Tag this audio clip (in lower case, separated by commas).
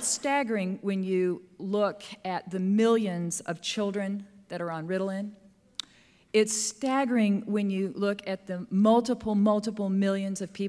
speech